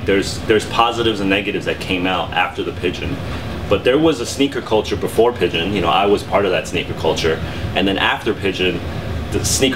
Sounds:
speech

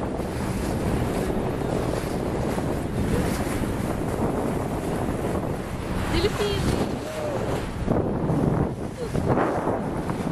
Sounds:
speedboat, water vehicle, speech, vehicle

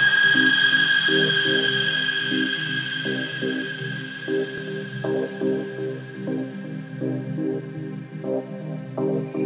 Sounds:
electronica, music

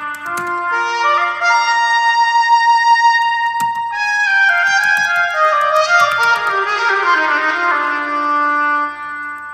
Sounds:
music, musical instrument

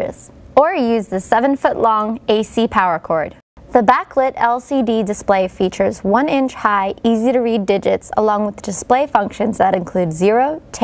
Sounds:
speech

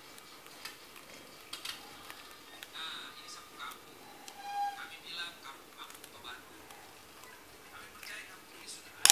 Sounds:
speech

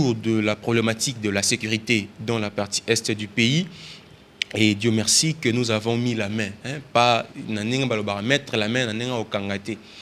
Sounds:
speech

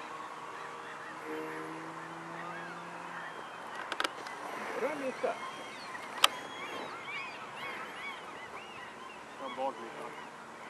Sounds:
speech

